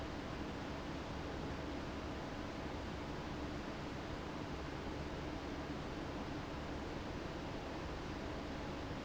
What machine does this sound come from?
fan